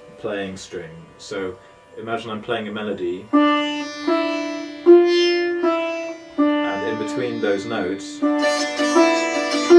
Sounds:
playing sitar

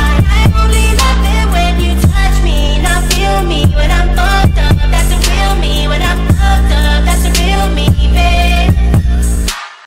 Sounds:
music

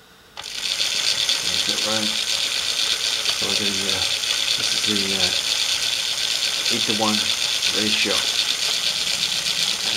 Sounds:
ratchet, gears, mechanisms

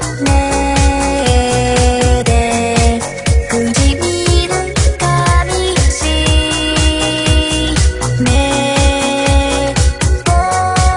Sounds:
music

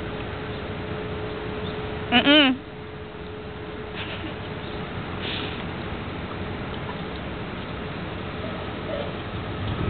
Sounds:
outside, urban or man-made, animal

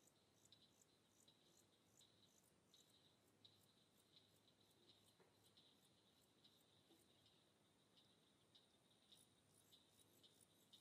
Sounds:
silence

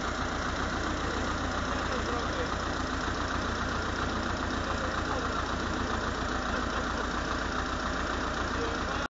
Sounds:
speech, truck, vehicle

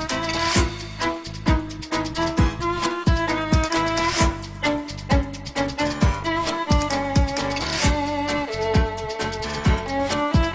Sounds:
music

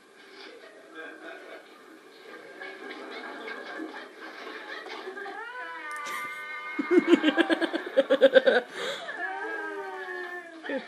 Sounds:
speech

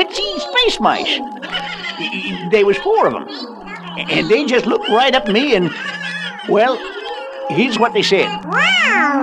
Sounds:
speech

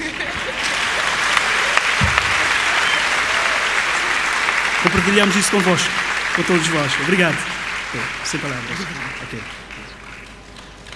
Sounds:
speech

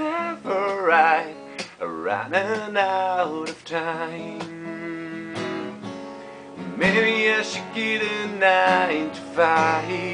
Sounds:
plucked string instrument, electric guitar, musical instrument, guitar, music

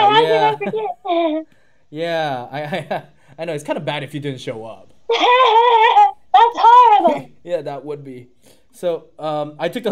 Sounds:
speech

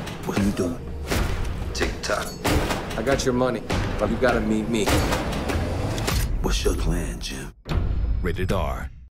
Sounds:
music, speech

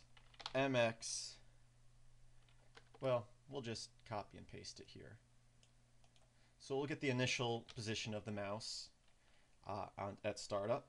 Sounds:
mouse clicking

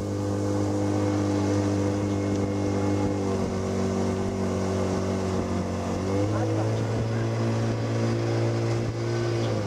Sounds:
speech, ocean, outside, rural or natural

